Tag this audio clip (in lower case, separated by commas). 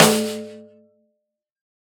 percussion, snare drum, music, drum, musical instrument